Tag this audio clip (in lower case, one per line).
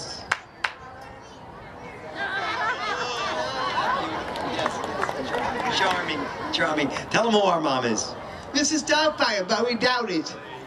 speech